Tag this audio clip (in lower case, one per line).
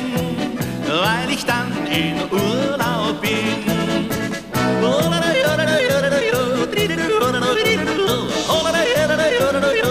music
soul music